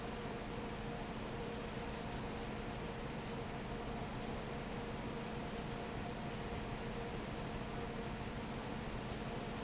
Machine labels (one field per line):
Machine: fan